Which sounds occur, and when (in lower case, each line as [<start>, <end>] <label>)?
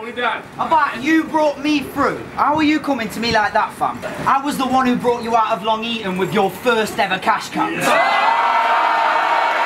[0.00, 0.41] male speech
[0.00, 9.65] mechanisms
[0.55, 2.15] male speech
[2.30, 3.90] male speech
[2.50, 2.78] wind noise (microphone)
[3.22, 3.42] wind noise (microphone)
[3.97, 4.17] generic impact sounds
[4.18, 7.83] male speech
[7.76, 9.65] crowd
[7.79, 9.65] shout
[9.45, 9.58] tick